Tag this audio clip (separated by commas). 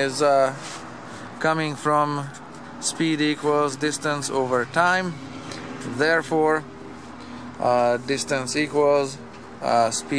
inside a small room, Speech